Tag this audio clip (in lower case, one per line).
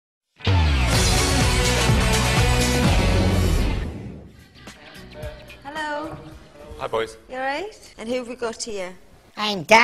music
inside a large room or hall
speech